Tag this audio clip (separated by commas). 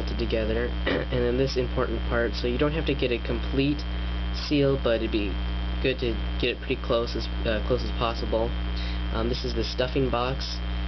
Speech